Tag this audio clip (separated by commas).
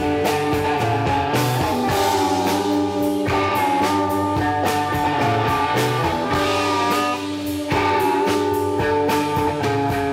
Music